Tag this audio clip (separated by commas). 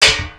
Tools